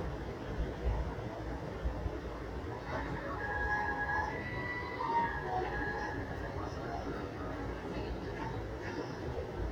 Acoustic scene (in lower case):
subway train